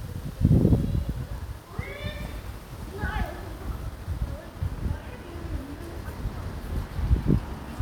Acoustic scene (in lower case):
residential area